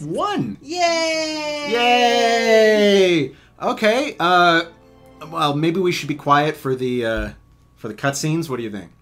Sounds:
music, speech

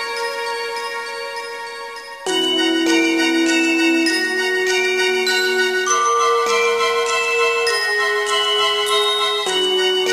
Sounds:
music

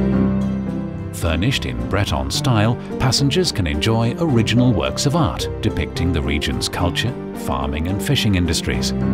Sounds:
speech, tender music, music

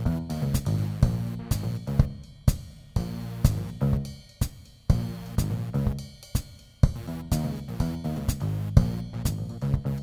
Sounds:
funk, music

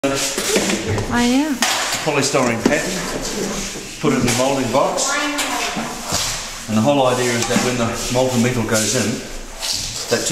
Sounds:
speech

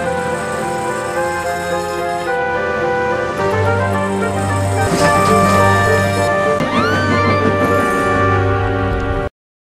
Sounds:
music, vehicle

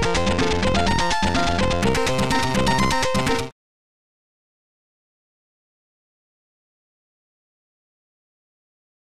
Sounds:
music

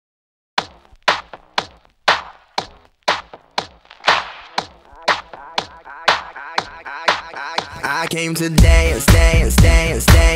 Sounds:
singing, music

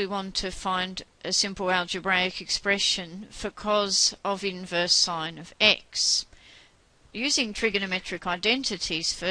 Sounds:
speech

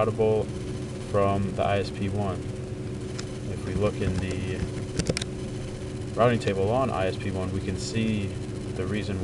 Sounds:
speech

